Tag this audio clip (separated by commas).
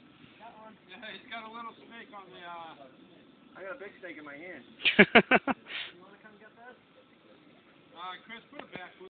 outside, rural or natural, Speech